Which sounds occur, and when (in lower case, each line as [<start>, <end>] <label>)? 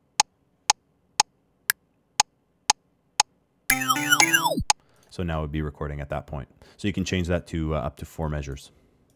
[0.00, 9.15] background noise
[0.18, 0.27] tick
[0.69, 0.76] tick
[1.18, 1.26] tick
[1.69, 1.75] tick
[2.19, 2.26] tick
[2.69, 2.79] tick
[3.20, 3.28] tick
[3.71, 4.63] music
[4.21, 4.26] tick
[4.70, 4.75] tick
[4.79, 5.12] clicking
[4.83, 5.09] breathing
[5.11, 6.49] male speech
[6.63, 6.79] breathing
[6.79, 8.74] male speech
[8.35, 8.56] clicking